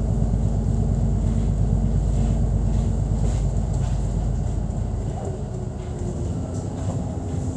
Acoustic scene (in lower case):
bus